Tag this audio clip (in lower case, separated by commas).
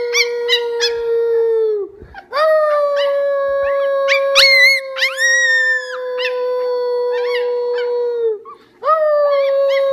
coyote howling